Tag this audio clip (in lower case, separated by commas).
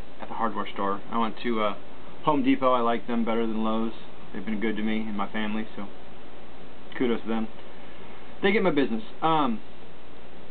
speech